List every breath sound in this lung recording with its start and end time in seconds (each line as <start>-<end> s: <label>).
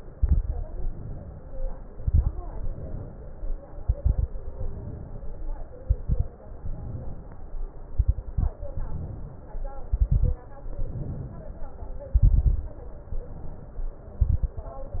0.10-0.91 s: exhalation
0.10-0.91 s: crackles
0.95-1.76 s: inhalation
1.90-2.37 s: exhalation
1.90-2.37 s: crackles
2.53-3.53 s: inhalation
3.84-4.31 s: exhalation
3.84-4.31 s: crackles
4.45-5.45 s: inhalation
5.83-6.31 s: exhalation
5.83-6.31 s: crackles
6.56-7.56 s: inhalation
7.91-8.62 s: exhalation
7.91-8.62 s: crackles
8.70-9.71 s: inhalation
9.90-10.45 s: exhalation
9.90-10.45 s: crackles
10.74-11.74 s: inhalation
12.09-12.82 s: exhalation
12.09-12.82 s: crackles
13.00-14.00 s: inhalation
14.16-14.59 s: exhalation
14.16-14.59 s: crackles